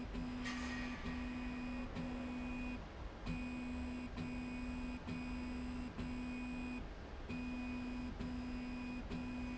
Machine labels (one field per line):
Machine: slide rail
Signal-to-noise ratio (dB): 6 dB